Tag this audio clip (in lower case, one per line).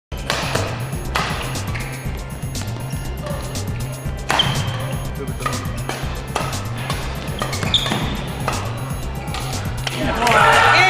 playing badminton